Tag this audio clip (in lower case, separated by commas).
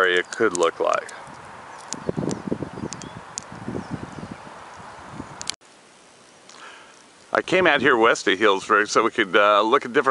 outside, rural or natural, speech